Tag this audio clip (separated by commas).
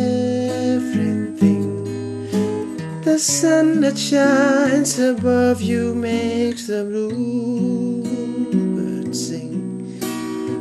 Plucked string instrument, Musical instrument, Acoustic guitar, Guitar, Music, Strum